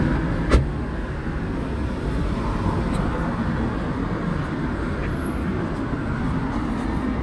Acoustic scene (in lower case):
street